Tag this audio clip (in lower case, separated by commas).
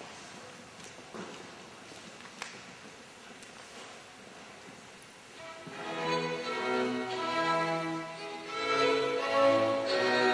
music